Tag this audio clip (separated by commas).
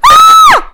Human voice, Yell, Shout, Screaming